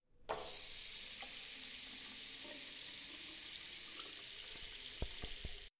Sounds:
sink (filling or washing)
home sounds

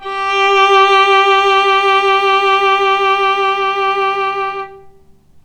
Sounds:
bowed string instrument
music
musical instrument

